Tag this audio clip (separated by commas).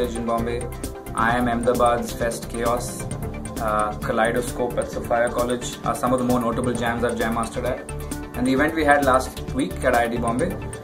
man speaking, Music, Speech